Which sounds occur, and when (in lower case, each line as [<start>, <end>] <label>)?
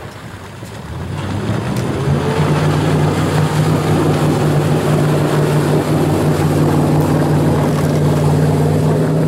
[0.00, 9.25] speedboat
[0.00, 9.25] ocean
[1.07, 9.25] accelerating